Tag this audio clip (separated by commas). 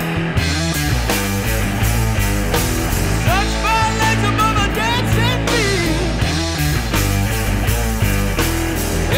Rock and roll, Music, Punk rock, Heavy metal, Grunge